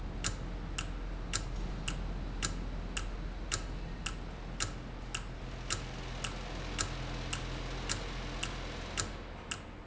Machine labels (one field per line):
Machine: valve